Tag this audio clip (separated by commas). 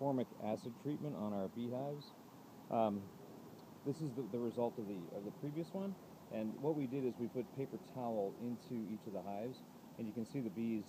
Speech